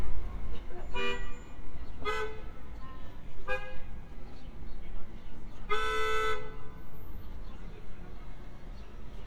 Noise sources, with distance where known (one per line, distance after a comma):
car horn, near